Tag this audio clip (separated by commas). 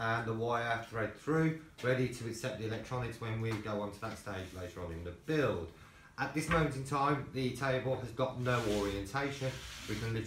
Speech